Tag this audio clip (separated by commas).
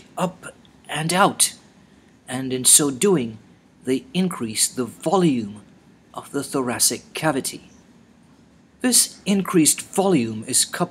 Speech